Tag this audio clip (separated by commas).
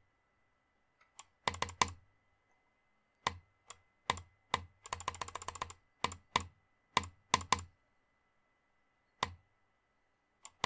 mouse clicking